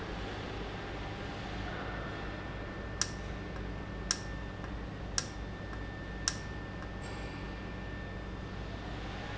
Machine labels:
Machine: valve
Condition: normal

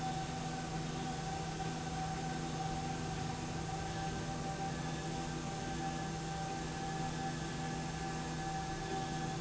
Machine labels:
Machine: slide rail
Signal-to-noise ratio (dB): -6 dB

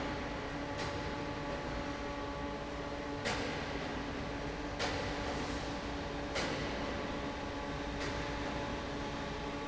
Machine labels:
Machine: fan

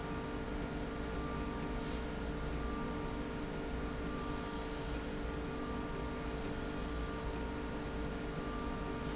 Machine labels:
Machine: slide rail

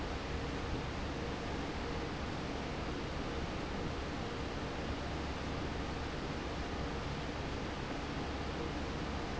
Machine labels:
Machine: fan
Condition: normal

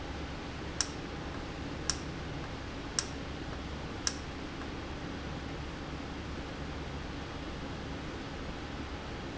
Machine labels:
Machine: valve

